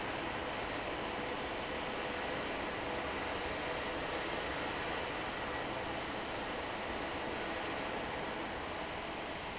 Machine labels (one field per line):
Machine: fan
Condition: normal